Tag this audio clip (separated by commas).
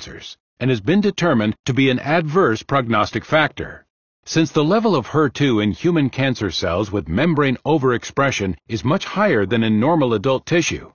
Speech